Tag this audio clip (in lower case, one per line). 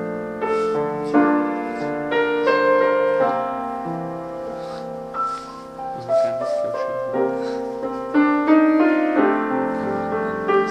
music
speech